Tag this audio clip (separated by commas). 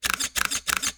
Mechanisms, Camera